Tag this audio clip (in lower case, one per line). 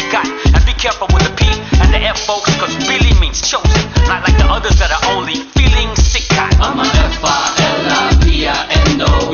music
independent music